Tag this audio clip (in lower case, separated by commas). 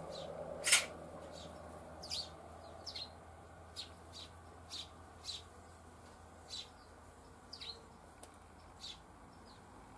magpie calling